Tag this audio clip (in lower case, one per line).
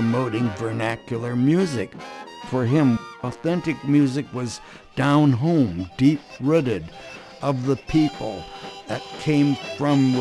music
speech